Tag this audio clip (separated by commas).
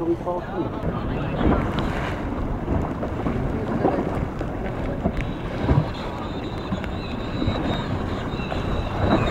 Ocean, Waves